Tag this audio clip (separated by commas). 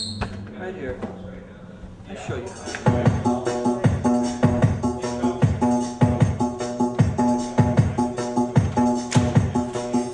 Musical instrument, Speech, Keyboard (musical), Organ, Music